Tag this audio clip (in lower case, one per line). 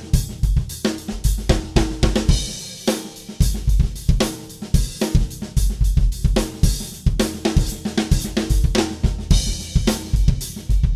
hi-hat
cymbal